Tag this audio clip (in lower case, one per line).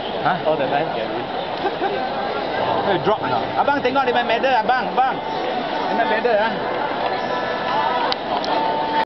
speech
outside, urban or man-made